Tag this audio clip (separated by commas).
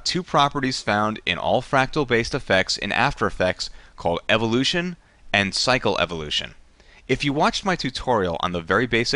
Speech